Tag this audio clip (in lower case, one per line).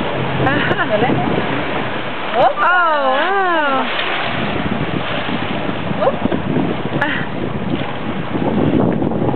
ocean
boat
speech
vehicle